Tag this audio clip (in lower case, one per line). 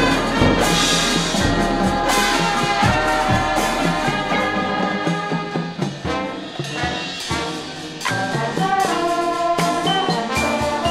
trombone